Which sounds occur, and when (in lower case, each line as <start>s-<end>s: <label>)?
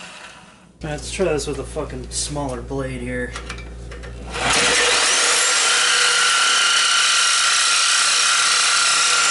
0.0s-0.3s: drill
0.0s-4.2s: mechanisms
0.8s-3.3s: male speech
1.3s-1.5s: generic impact sounds
1.8s-2.6s: generic impact sounds
3.3s-4.2s: generic impact sounds
4.2s-9.3s: drill